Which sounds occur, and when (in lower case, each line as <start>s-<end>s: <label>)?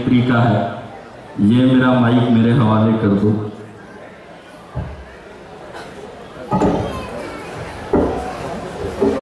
0.0s-0.8s: man speaking
0.0s-9.1s: crowd
1.3s-3.5s: man speaking
4.7s-4.9s: generic impact sounds
5.7s-5.9s: generic impact sounds
6.5s-6.7s: generic impact sounds
6.6s-7.5s: kid speaking
7.9s-8.1s: generic impact sounds